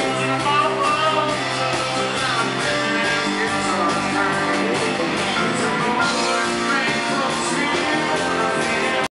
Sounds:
male singing
music

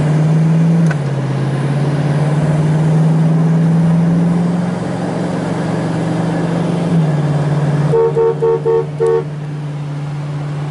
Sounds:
vehicle horn
car
vehicle

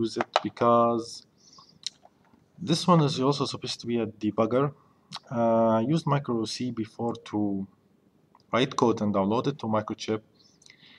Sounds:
chewing

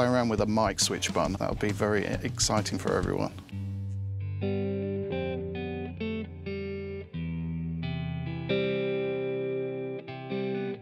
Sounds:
electric guitar
music

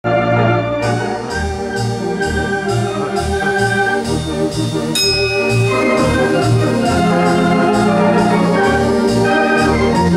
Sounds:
music
church bell

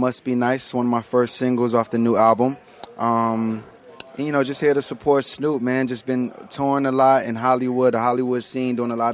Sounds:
speech

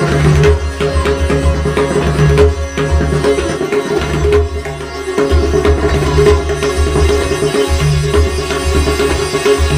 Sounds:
playing sitar

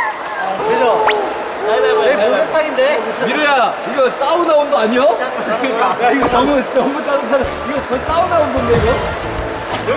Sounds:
speech
music

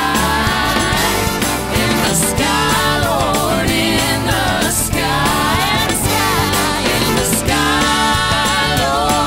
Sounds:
music
exciting music

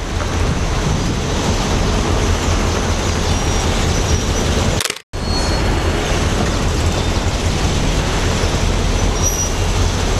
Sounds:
heavy engine (low frequency)
vehicle

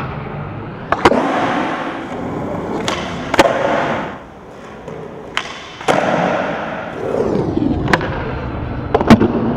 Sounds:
skateboard
skateboarding

